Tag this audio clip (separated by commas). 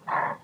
Animal